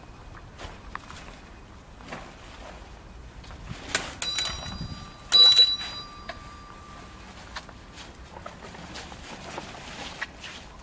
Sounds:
outside, urban or man-made

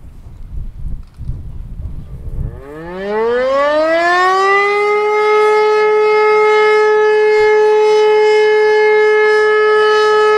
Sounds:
civil defense siren

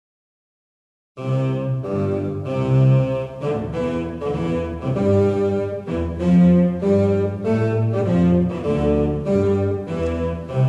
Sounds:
Music, Classical music

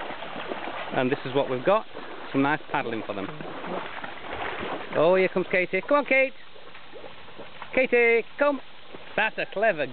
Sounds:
Animal, Speech

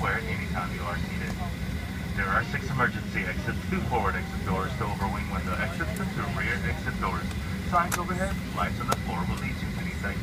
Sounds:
Vehicle, Engine, Aircraft, Speech, Idling

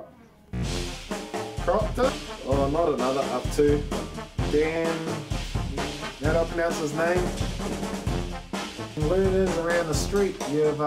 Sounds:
Music, Speech

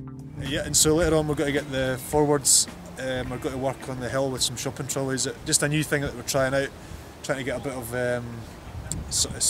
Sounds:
Music, Speech

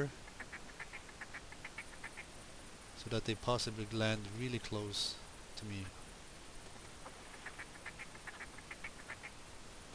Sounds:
Speech, Duck

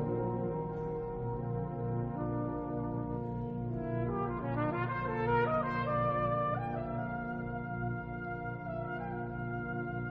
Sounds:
Brass instrument, Music, Musical instrument, Trombone, Orchestra, Classical music, Trumpet

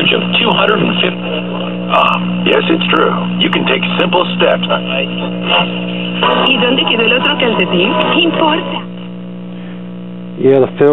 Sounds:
Music, Speech, Radio

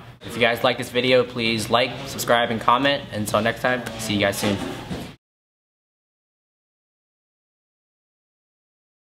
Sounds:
Speech

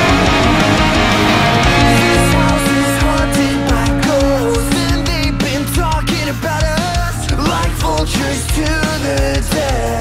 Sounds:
Music, Guitar, Electric guitar, Plucked string instrument, Musical instrument, Strum

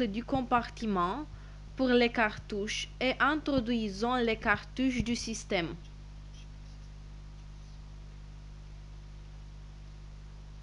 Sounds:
Speech

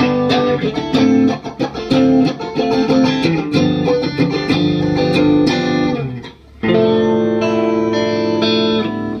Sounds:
Musical instrument, Strum, Guitar, Electric guitar, Plucked string instrument, Music

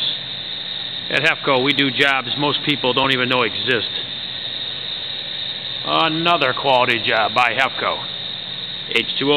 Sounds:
Speech

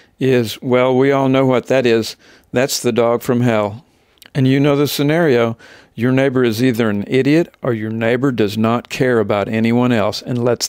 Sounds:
Speech

